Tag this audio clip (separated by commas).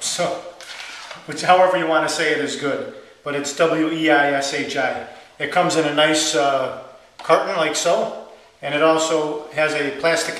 Speech